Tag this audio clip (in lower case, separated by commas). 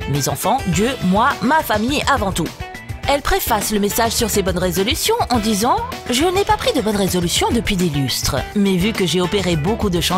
music, speech